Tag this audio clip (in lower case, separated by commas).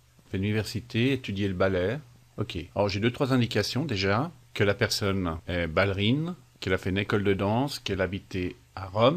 speech